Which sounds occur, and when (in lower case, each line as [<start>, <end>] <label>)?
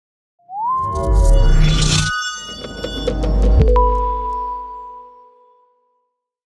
[0.34, 6.16] music
[0.72, 2.07] sound effect
[2.45, 3.76] sound effect